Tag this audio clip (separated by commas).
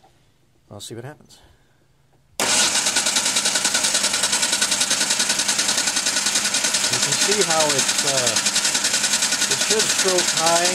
inside a large room or hall, Vehicle, Speech